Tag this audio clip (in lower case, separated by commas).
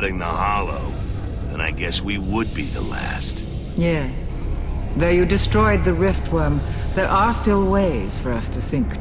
speech